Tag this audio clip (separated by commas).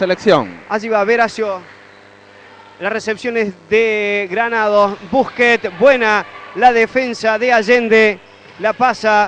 Speech